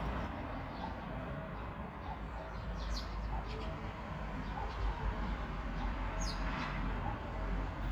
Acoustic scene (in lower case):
park